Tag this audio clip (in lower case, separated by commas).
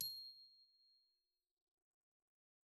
percussion, mallet percussion, musical instrument, glockenspiel, music